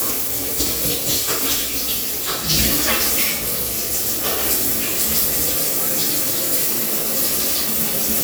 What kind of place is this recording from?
restroom